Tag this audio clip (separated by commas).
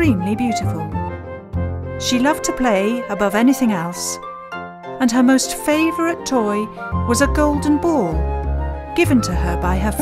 Speech, Music